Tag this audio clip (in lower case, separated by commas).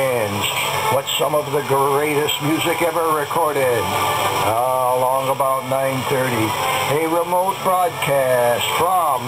speech, music, radio